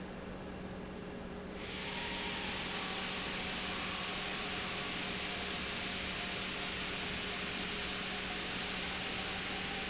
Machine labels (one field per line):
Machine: pump